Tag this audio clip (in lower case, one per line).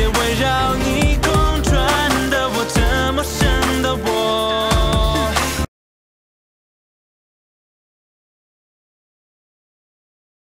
male singing
music